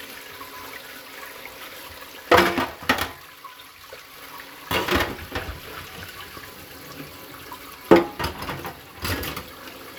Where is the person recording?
in a kitchen